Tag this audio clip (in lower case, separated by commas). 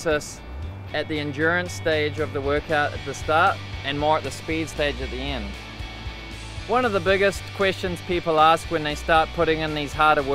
speech, music